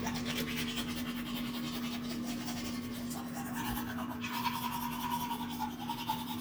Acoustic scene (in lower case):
restroom